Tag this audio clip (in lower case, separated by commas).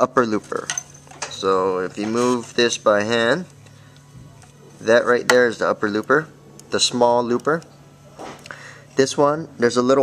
speech, music